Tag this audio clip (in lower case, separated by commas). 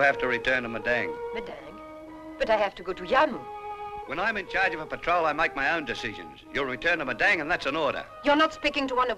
music, speech